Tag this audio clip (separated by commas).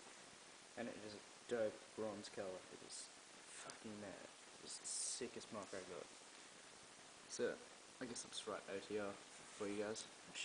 Speech